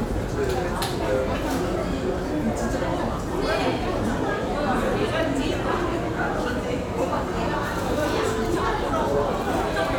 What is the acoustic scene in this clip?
crowded indoor space